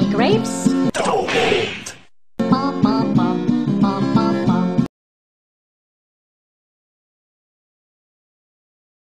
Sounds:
Music, Speech

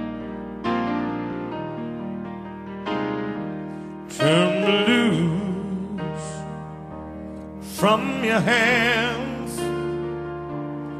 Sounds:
Music

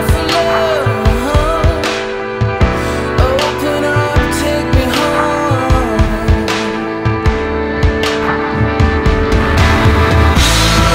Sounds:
Music

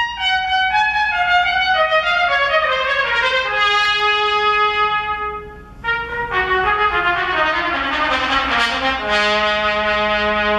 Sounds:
playing trumpet, Trumpet, Brass instrument

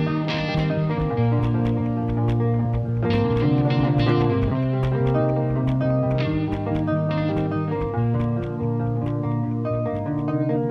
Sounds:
Rock music, Music

